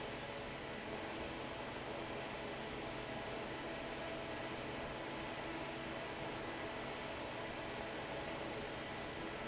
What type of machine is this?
fan